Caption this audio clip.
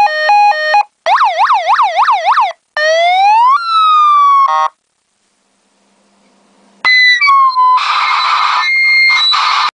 Several different emergency sirens are triggered subsequently